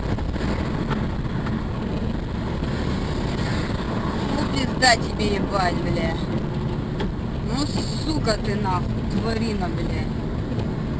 Wind is blowing and a car is accelerating while a woman talks